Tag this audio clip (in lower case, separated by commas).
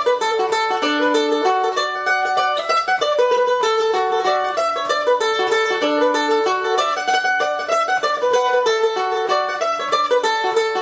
mandolin, music